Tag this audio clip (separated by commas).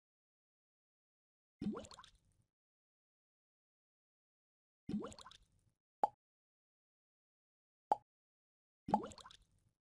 Plop, Silence